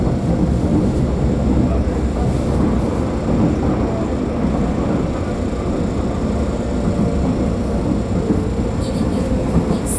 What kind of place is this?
subway train